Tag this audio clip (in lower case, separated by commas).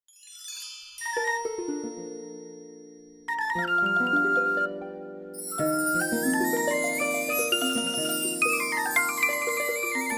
music, inside a small room